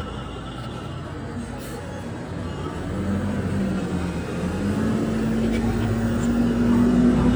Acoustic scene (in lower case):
street